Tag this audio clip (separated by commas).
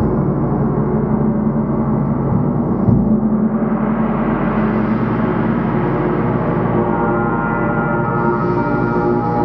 playing gong